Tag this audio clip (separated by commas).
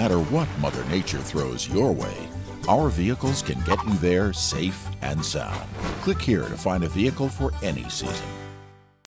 Sound effect, Speech, Music